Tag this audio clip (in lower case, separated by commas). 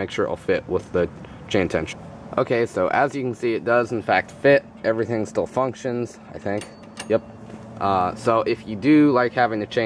speech, inside a large room or hall